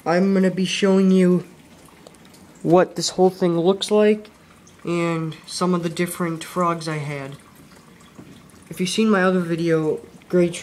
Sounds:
Speech

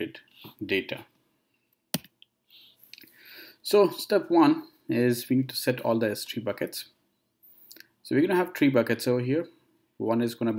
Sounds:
Speech

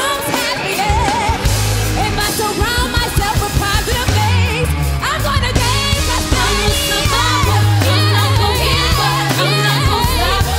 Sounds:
child singing

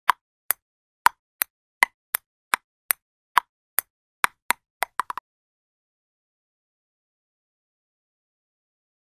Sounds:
Ping

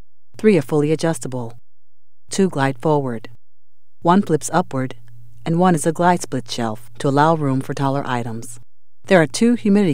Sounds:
Speech

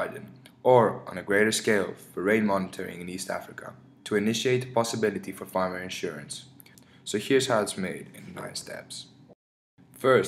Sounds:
Speech

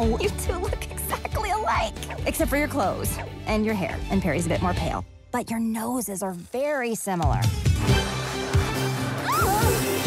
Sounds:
Music, Speech

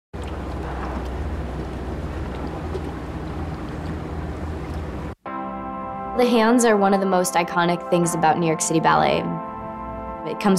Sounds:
Speech, Music

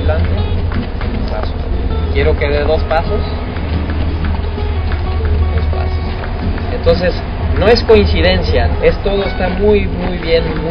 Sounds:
Music, Speech, inside a public space, Animal, Horse

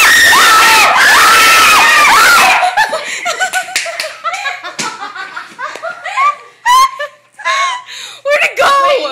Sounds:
Speech

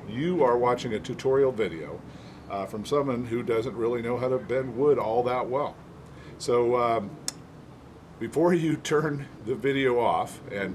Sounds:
Speech

